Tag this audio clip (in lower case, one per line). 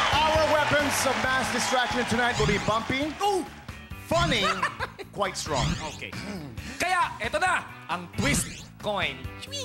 music
laughter
speech
shout